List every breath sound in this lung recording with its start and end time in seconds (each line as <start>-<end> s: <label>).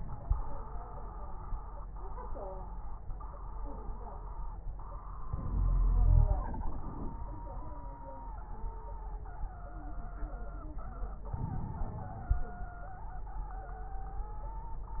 5.28-6.42 s: inhalation
5.47-6.42 s: wheeze
6.44-7.20 s: exhalation
6.44-7.20 s: crackles
11.36-12.51 s: inhalation
11.36-12.51 s: crackles